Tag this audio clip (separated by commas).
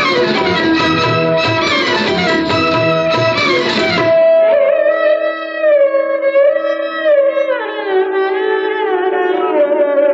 Music, Music of Bollywood